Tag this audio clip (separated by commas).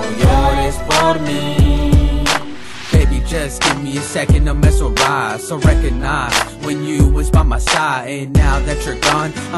Music